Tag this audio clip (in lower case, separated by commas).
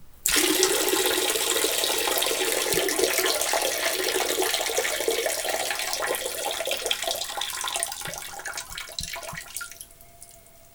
liquid